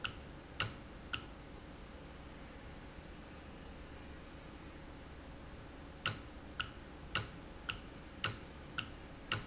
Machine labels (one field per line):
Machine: valve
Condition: normal